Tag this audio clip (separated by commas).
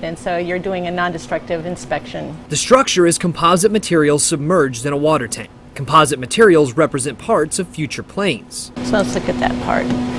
Speech